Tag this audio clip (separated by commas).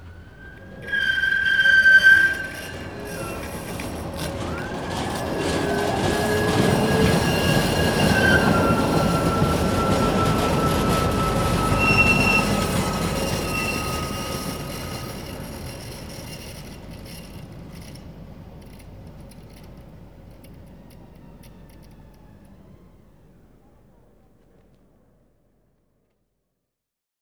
Vehicle, Rail transport, Train